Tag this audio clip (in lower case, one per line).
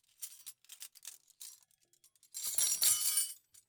silverware
domestic sounds